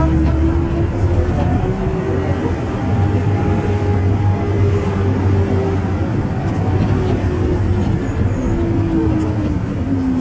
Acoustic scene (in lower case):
bus